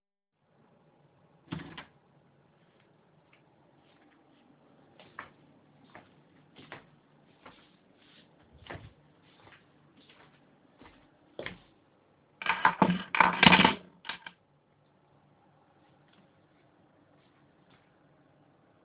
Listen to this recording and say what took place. I walk through the hallway while holding my keys and place them on a table.